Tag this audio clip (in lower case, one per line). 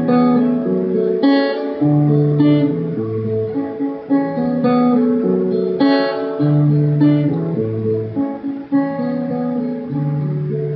guitar
acoustic guitar
musical instrument
music
plucked string instrument